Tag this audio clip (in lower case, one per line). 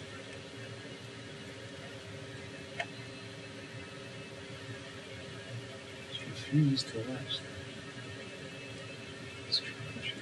speech